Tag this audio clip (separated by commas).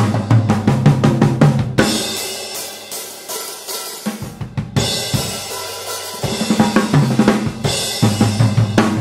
playing cymbal